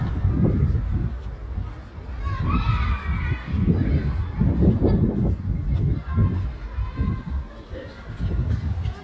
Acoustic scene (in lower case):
residential area